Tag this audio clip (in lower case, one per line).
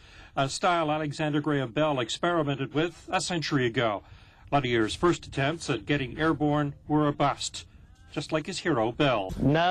speech